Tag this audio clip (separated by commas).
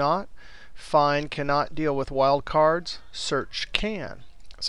Speech